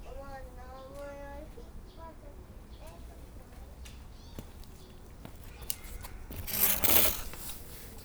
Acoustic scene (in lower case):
park